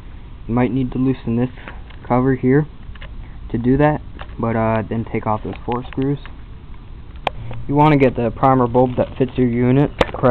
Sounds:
speech

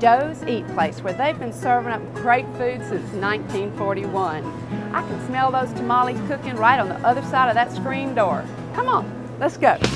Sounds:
music, speech

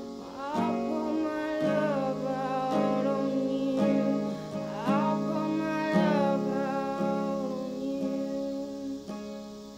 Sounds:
guitar, acoustic guitar, music, singing

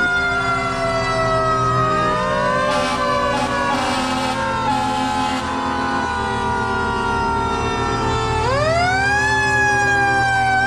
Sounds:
fire truck siren

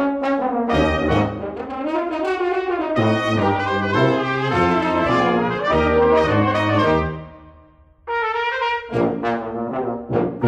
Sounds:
trumpet, brass instrument, playing french horn, french horn, trombone

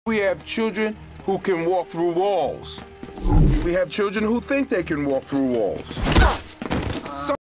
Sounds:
speech, walk, music

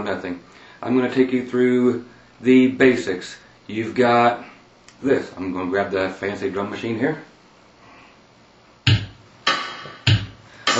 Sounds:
speech, music

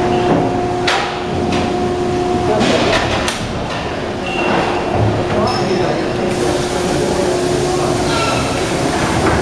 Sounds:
hammer

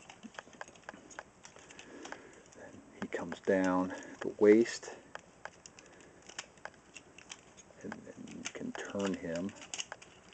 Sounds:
speech, inside a small room

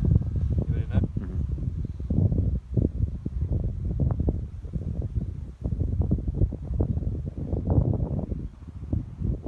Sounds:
wind noise (microphone), speech

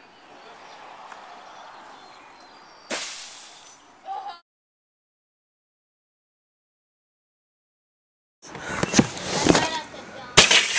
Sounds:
speech

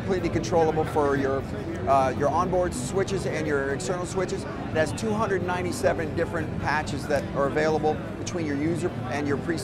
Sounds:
speech

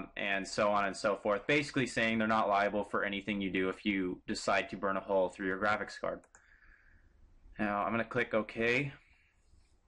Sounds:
clicking

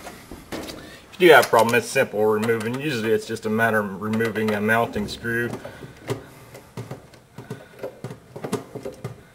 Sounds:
door

